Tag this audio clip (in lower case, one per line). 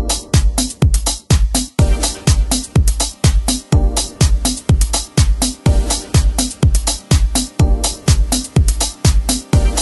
music